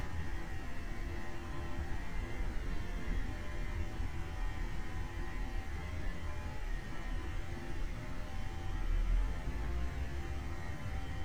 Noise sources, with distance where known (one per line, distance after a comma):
unidentified powered saw, far